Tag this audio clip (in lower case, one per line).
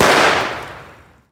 explosion